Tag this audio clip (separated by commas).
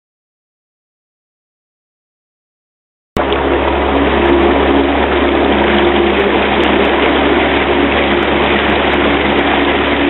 Vehicle